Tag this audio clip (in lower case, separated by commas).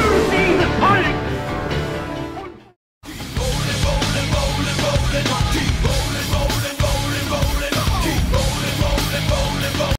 speech, music